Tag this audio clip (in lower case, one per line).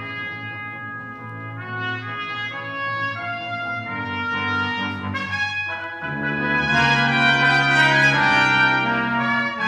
trumpet
brass instrument
french horn